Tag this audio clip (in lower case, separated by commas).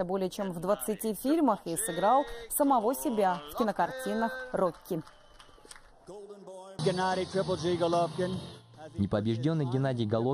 people battle cry